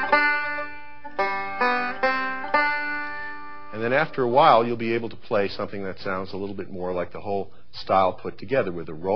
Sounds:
Banjo, Speech, Musical instrument, Music

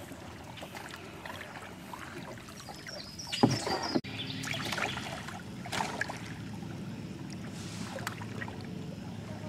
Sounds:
canoe, Vehicle, Boat, Rowboat

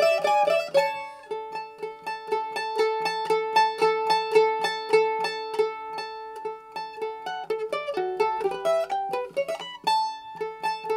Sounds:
Music, Mandolin

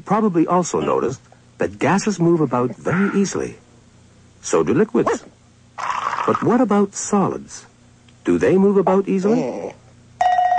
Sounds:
Liquid, Speech

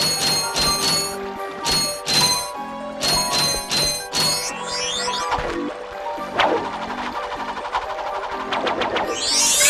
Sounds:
Music

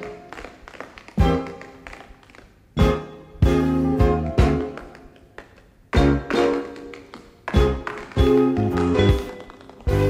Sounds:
Music

